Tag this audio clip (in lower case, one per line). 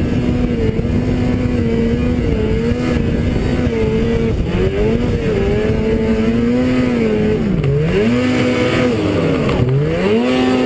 driving snowmobile